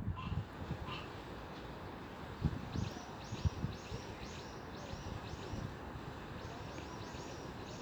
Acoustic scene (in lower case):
park